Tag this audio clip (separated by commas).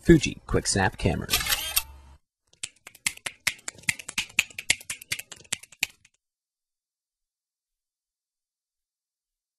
Speech, Single-lens reflex camera